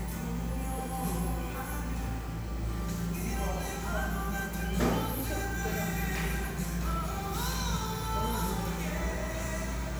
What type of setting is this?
cafe